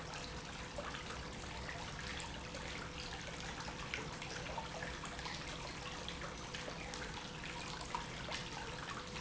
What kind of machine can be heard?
pump